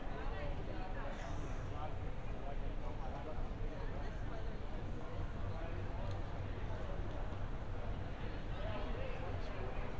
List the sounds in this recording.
person or small group talking